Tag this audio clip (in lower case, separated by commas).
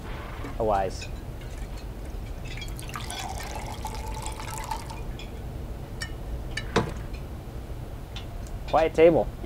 speech